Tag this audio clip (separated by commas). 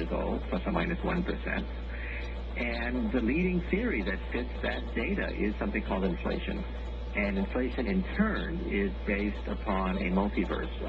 Speech